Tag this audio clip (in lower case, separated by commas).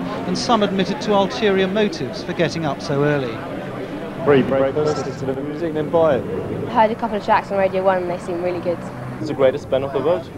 speech